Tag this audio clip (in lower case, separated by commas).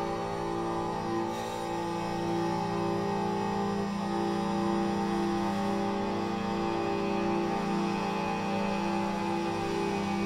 guitar, musical instrument